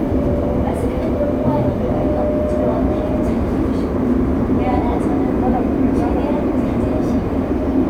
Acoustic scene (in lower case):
subway train